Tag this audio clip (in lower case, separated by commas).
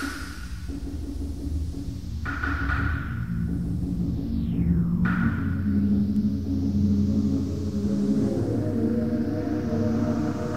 music, electronic music